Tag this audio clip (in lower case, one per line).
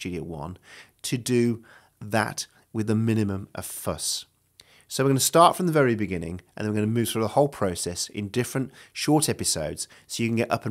speech